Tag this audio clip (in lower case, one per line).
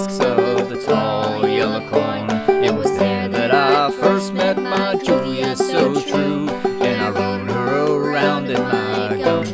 music